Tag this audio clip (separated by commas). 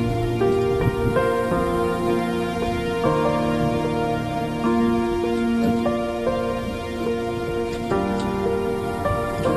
Music, New-age music